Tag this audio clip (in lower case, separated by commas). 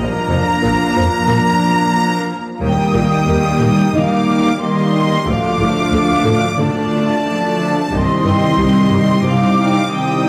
music, theme music